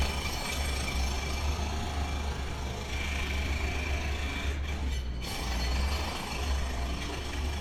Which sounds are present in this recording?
jackhammer